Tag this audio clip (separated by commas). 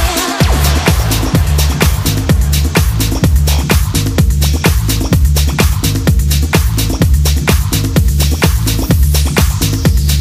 Rhythm and blues, Music, Soundtrack music, Disco